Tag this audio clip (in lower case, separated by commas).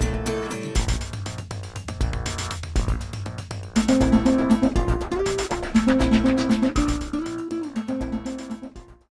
music